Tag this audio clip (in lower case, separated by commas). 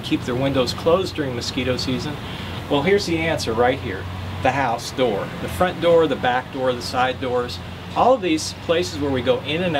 speech